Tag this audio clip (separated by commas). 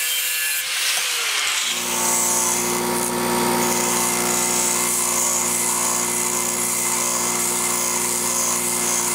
Power tool, inside a small room